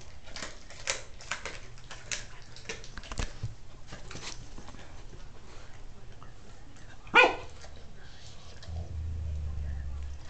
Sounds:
dog, bow-wow

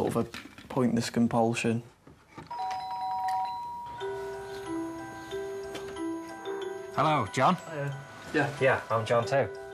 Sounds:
music, doorbell, speech

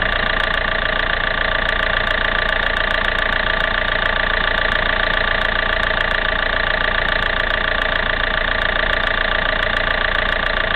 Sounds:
engine, vehicle

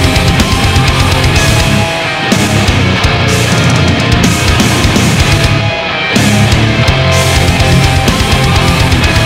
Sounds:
music

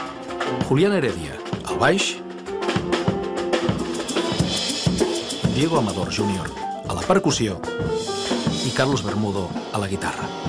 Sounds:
speech, music

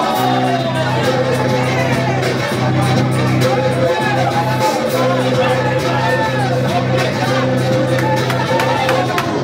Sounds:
crowd

